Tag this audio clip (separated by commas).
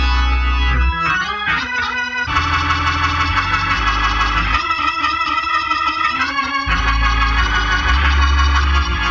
Music